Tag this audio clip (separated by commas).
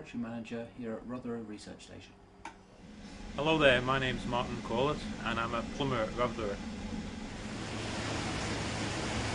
Speech